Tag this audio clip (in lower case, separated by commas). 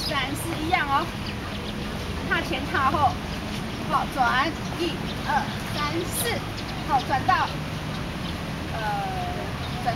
speech, walk